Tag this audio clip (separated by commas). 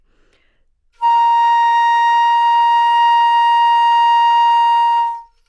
Music, woodwind instrument, Musical instrument